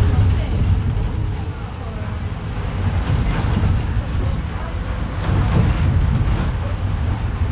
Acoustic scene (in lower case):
bus